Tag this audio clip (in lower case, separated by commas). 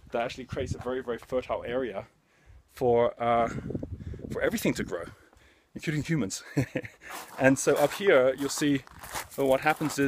speech